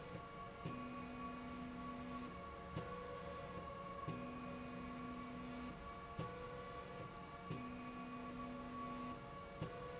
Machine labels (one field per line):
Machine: slide rail